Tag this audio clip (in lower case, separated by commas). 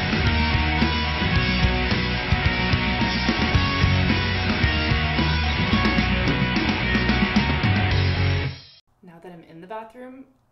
music, speech